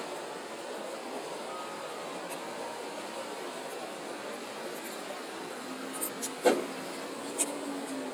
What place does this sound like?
residential area